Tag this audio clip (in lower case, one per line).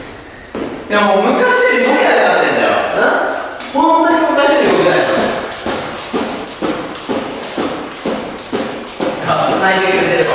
rope skipping